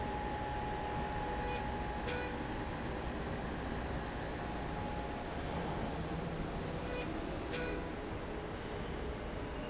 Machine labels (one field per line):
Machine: slide rail